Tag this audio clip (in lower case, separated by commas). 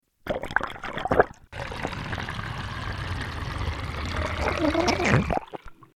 sink (filling or washing), domestic sounds